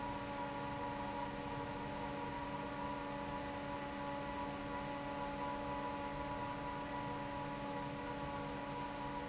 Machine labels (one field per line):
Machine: fan